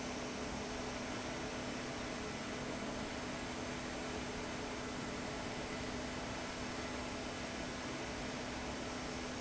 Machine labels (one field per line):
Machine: fan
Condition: abnormal